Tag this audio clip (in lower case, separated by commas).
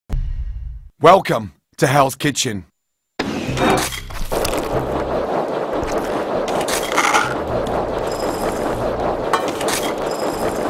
speech